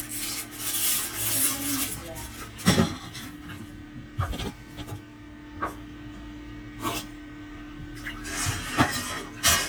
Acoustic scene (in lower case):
kitchen